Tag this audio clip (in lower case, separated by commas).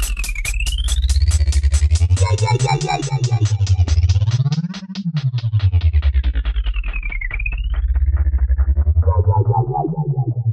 music, electronic music